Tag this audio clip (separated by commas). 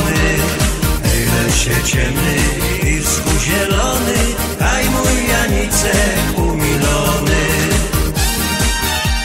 Music